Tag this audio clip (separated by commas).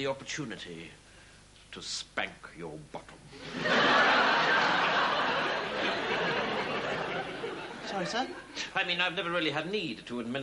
Speech